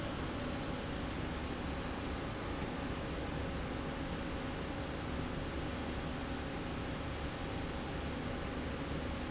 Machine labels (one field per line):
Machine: slide rail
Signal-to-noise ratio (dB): -6 dB